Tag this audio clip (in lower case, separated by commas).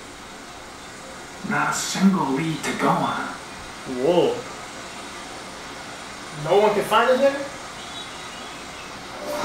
speech, rain on surface